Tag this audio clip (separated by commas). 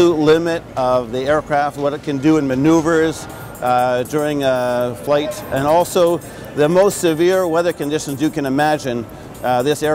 Speech, Music